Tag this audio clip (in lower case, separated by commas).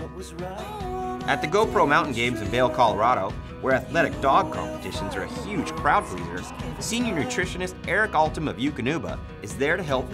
speech, music